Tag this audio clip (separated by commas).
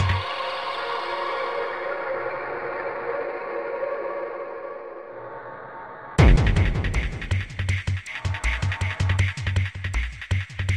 Music